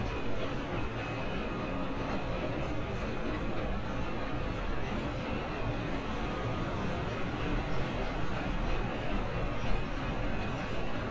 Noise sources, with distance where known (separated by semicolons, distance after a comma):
reverse beeper, far